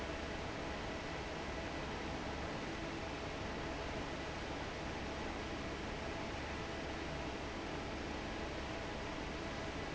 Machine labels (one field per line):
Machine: fan